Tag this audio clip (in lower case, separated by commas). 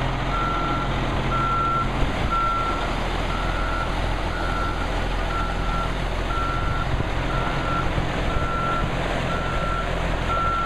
truck, vehicle